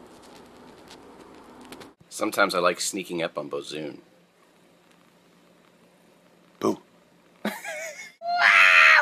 Man speaking then scream